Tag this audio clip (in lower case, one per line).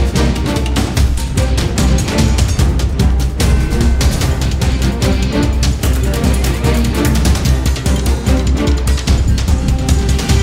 music